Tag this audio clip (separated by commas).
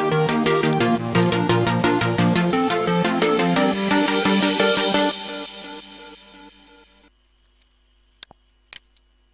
Music